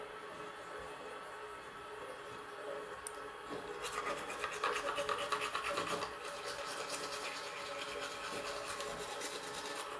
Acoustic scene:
restroom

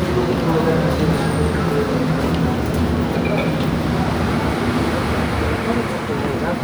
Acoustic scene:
subway station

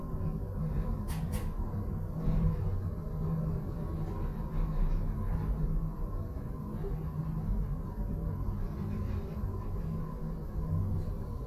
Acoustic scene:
elevator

